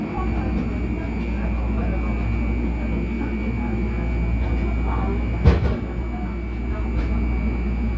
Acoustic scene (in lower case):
subway train